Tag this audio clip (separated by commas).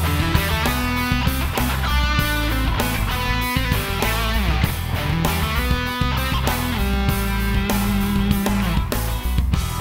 Music